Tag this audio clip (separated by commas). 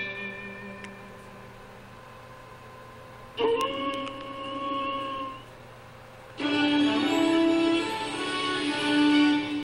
Music, Television